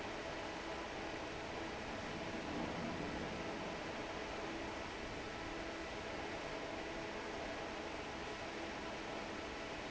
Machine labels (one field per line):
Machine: fan